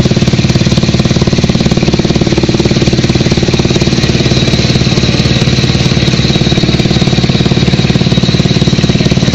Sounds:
outside, rural or natural

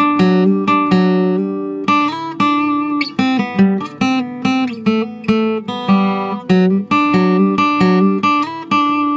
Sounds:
Music, Acoustic guitar, Plucked string instrument, Musical instrument, Guitar

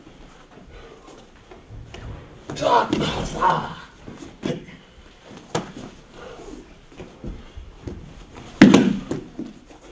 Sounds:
Speech

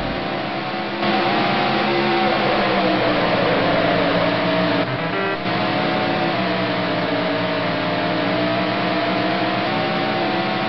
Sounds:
Truck, Vehicle

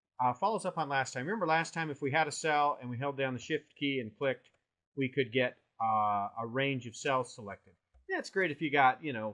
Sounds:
Speech

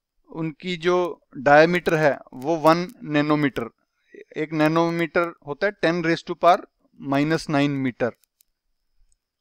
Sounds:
Speech

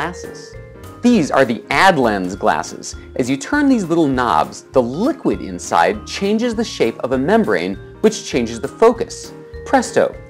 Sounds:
Speech

